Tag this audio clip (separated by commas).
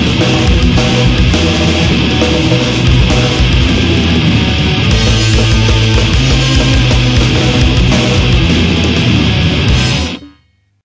Rock music, Music